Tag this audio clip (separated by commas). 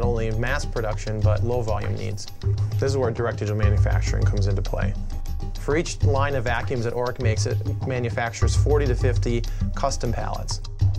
Music, Speech